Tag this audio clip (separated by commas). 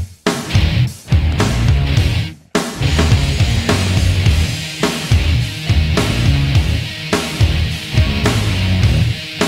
Theme music, Music